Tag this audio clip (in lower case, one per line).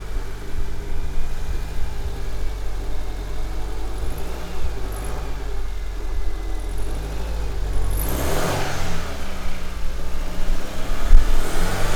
vroom
engine